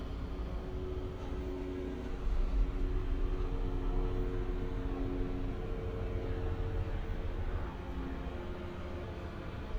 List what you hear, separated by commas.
engine of unclear size, unidentified impact machinery